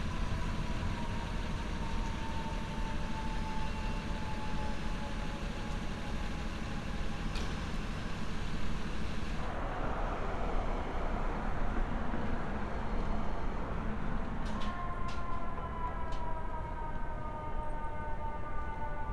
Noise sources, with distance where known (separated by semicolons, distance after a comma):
siren, far